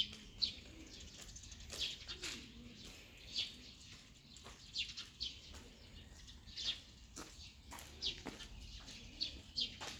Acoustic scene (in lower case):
park